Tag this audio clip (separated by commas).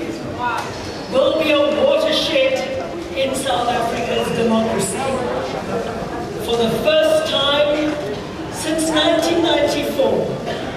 Speech, woman speaking